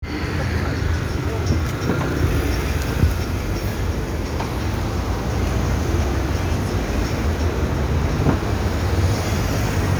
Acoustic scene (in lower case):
street